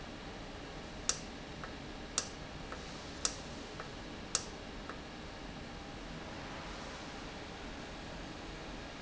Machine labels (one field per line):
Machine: valve